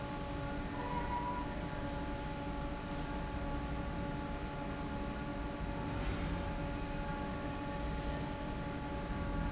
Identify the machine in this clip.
fan